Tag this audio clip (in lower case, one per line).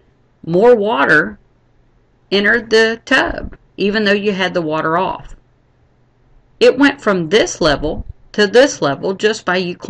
speech